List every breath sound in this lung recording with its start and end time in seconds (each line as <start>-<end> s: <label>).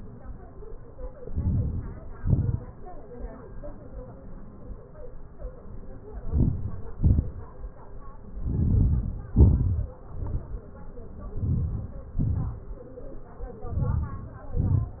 1.33-2.00 s: inhalation
2.19-2.71 s: exhalation
6.20-6.75 s: inhalation
6.92-7.34 s: exhalation
8.51-9.18 s: inhalation
9.38-9.96 s: exhalation
11.48-12.09 s: inhalation
12.26-12.70 s: exhalation
13.78-14.34 s: inhalation
14.60-15.00 s: exhalation